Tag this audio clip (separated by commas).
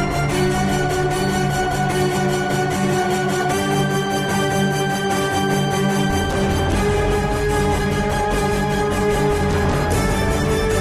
Theme music